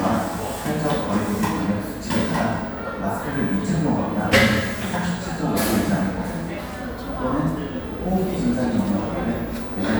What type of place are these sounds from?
cafe